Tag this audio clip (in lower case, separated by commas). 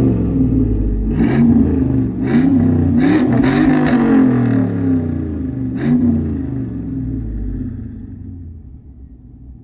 vehicle, car